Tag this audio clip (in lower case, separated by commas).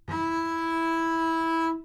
music, bowed string instrument, musical instrument